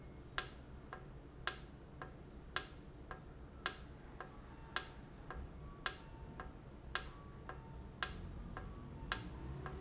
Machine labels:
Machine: valve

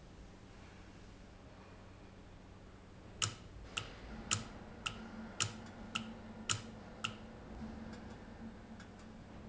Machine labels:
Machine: valve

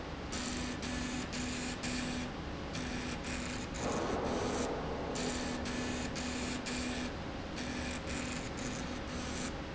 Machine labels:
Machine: slide rail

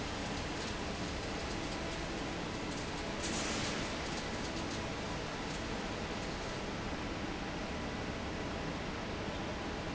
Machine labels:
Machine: fan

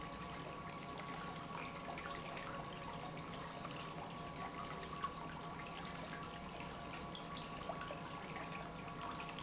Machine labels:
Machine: pump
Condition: normal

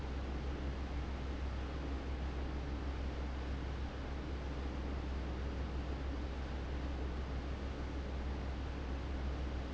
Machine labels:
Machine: fan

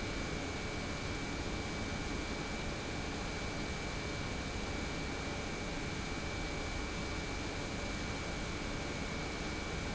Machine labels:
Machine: pump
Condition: normal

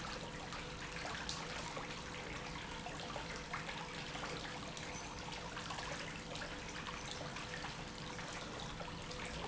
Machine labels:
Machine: pump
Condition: normal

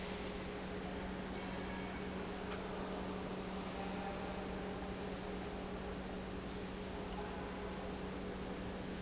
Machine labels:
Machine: pump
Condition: normal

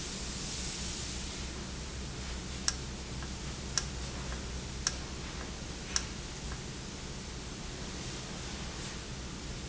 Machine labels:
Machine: valve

